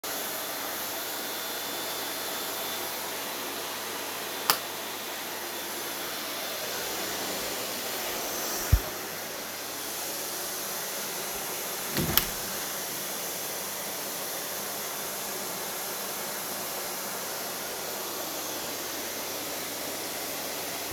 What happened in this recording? You can hear a vacuum cleaner running in the background. I am coming from the hallway to the living room and switch on additional lights, then go through the room to open the window and check on the view outside.